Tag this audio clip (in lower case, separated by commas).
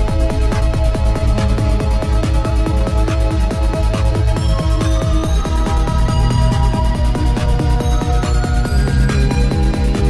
trance music, music